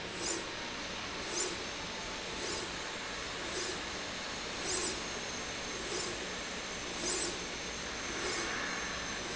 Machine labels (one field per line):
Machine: slide rail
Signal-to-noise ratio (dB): -6 dB